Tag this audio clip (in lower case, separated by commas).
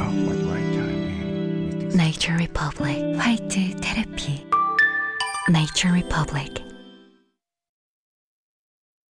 music, speech